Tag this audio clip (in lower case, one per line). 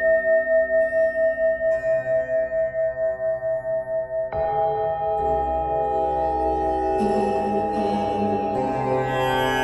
singing bowl